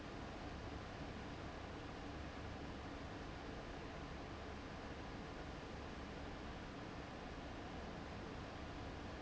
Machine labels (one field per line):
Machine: fan